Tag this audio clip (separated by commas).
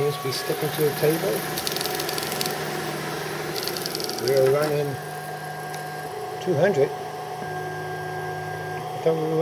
Speech, Printer